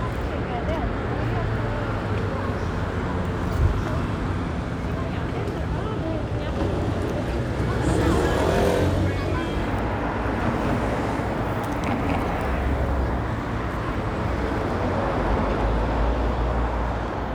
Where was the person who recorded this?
on a street